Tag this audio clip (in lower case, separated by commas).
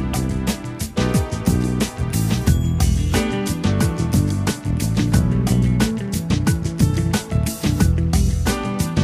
music